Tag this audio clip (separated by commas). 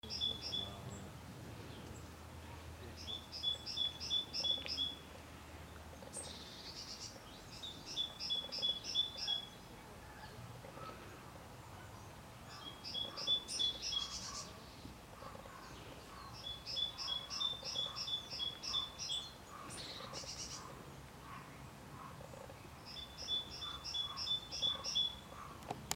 Animal, Wild animals, Bird